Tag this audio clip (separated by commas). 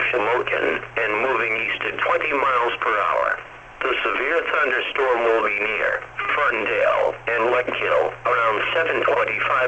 Speech, Radio